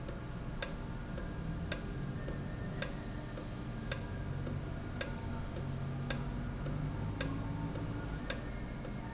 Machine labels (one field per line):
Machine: valve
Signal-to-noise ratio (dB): -6 dB